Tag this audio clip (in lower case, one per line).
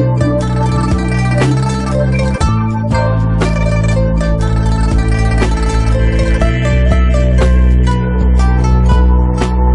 music